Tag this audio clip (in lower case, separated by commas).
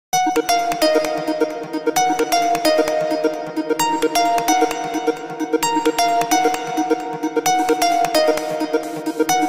music, electronic music, electronica